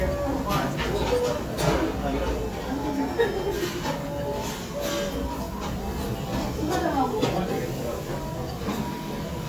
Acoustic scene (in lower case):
restaurant